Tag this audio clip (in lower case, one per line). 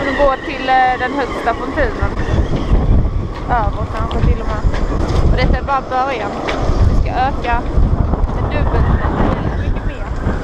speech